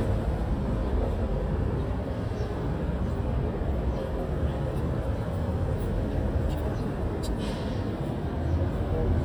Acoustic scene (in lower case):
residential area